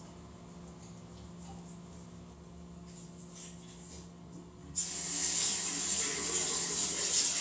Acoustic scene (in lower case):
restroom